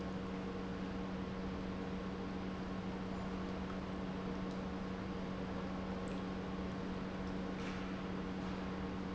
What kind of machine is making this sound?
pump